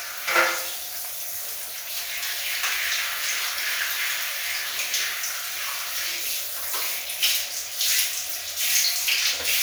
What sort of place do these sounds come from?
restroom